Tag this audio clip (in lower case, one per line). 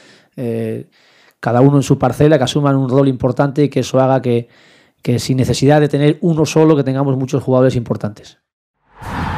speech